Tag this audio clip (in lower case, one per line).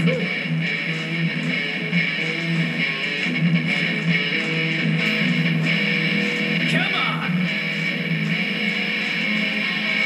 strum
guitar
plucked string instrument
musical instrument
music